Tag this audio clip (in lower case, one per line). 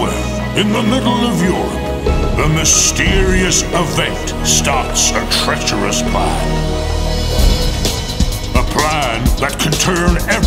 music
speech